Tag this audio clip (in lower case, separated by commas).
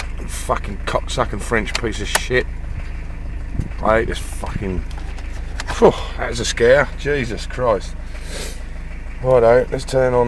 speech, vehicle, car